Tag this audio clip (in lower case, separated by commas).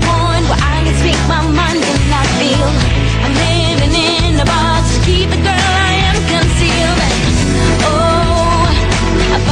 soundtrack music, jazz, music